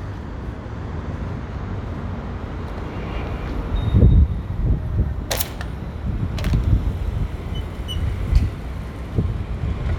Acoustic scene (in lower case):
residential area